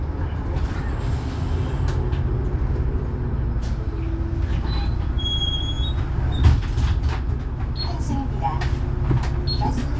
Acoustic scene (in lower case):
bus